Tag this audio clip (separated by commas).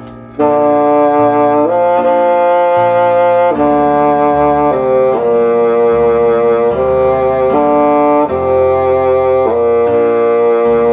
playing bassoon